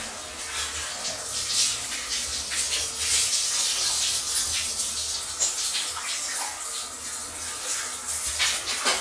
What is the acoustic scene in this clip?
restroom